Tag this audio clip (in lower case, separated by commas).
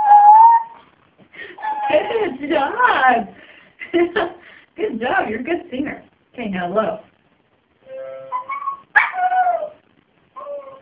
music, speech